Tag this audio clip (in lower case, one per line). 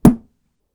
thump